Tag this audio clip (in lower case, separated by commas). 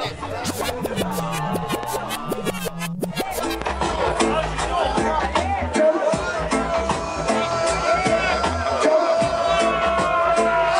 speech, crowd, music